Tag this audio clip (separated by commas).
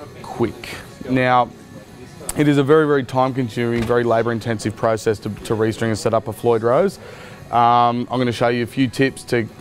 Speech, Music